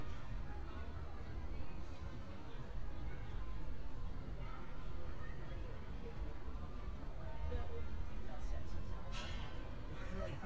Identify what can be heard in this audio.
person or small group talking